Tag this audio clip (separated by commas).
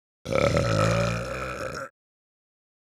Burping